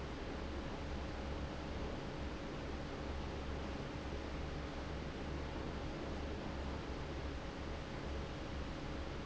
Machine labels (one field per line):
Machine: fan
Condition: abnormal